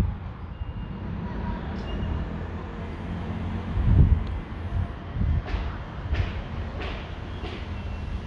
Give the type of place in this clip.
residential area